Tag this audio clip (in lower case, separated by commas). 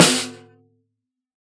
music, musical instrument, snare drum, drum, percussion